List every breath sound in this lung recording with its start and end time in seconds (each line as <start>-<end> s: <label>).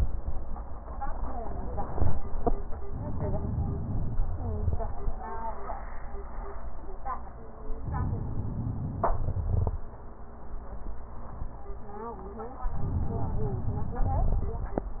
2.87-4.31 s: inhalation
4.26-5.15 s: crackles
4.27-5.08 s: exhalation
7.82-9.11 s: inhalation
9.12-9.84 s: exhalation
9.21-9.73 s: crackles
12.73-14.12 s: inhalation
14.03-14.52 s: crackles
14.13-14.86 s: exhalation